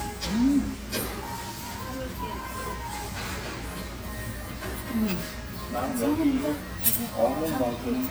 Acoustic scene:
restaurant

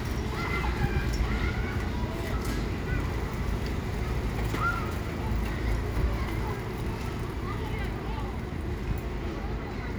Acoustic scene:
residential area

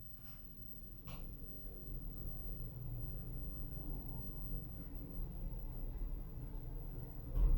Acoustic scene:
elevator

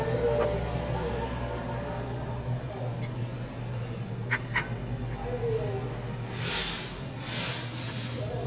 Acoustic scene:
restaurant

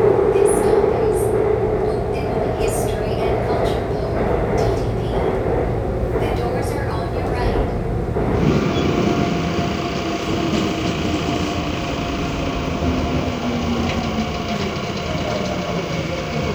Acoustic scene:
subway train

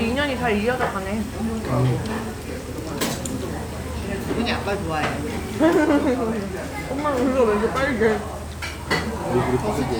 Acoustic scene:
restaurant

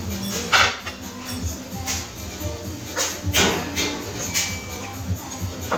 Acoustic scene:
restaurant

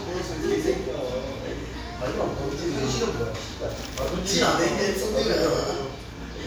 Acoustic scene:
restaurant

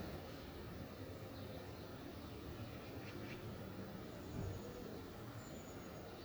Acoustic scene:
park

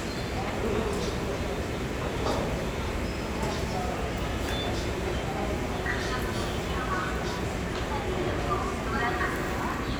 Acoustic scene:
crowded indoor space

